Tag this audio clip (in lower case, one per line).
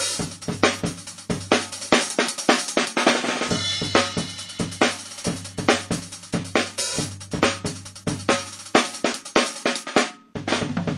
hi-hat
cymbal
playing cymbal